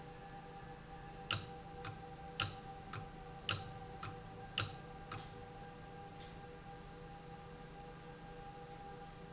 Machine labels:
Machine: valve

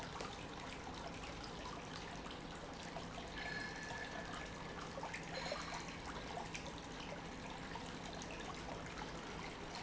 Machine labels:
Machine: pump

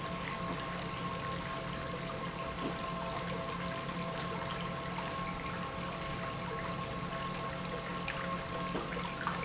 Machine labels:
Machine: pump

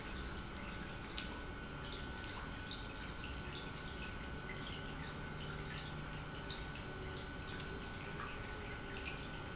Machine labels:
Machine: pump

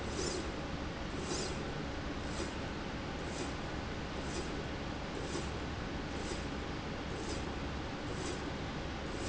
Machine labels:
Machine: slide rail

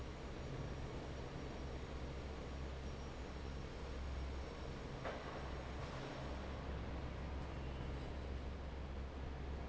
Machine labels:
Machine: fan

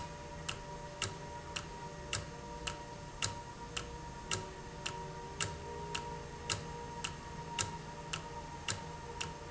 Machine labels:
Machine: valve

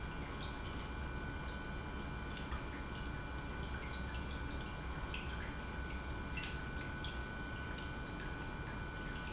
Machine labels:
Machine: pump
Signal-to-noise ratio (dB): 0 dB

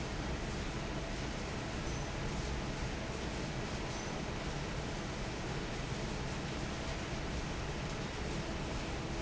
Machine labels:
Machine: fan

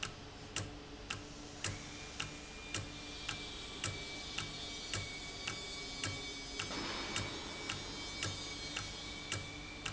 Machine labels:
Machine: valve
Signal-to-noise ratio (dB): 0 dB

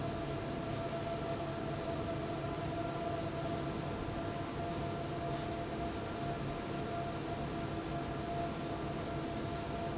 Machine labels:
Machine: fan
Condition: abnormal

